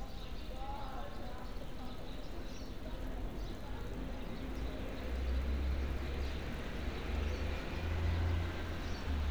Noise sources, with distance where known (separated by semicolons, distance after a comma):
person or small group talking, far